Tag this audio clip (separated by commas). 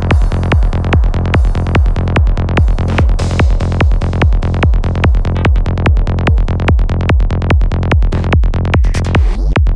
Music